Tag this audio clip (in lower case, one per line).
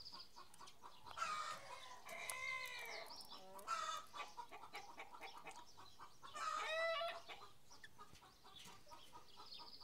cluck
rooster
fowl